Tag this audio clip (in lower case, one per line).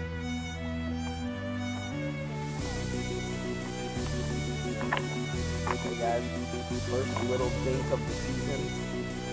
speech
music